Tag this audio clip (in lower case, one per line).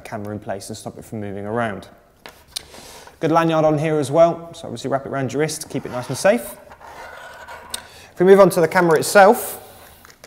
speech